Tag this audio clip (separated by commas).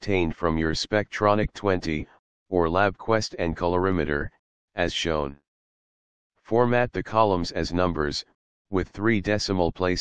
Speech synthesizer